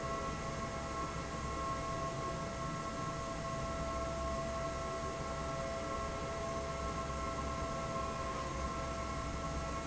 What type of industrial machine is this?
fan